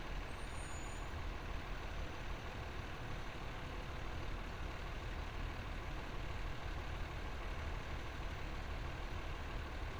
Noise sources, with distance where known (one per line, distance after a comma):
large-sounding engine